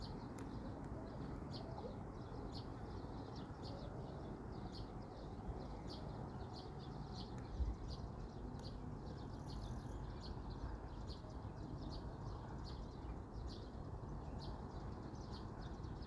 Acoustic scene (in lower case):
park